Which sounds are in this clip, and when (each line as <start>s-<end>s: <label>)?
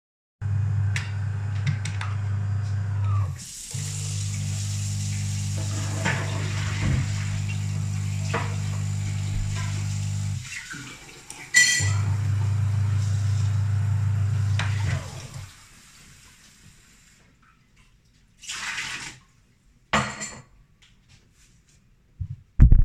0.4s-3.5s: coffee machine
3.4s-17.7s: running water
3.7s-10.5s: coffee machine
6.0s-7.2s: cutlery and dishes
8.2s-8.6s: cutlery and dishes
11.5s-11.8s: cutlery and dishes
11.7s-15.5s: coffee machine
18.4s-19.2s: running water
19.9s-20.5s: cutlery and dishes